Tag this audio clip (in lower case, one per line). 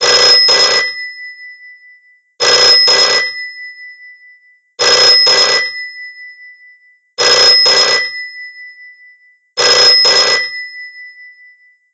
alarm
telephone